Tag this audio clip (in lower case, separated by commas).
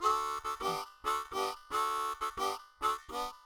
harmonica, musical instrument, music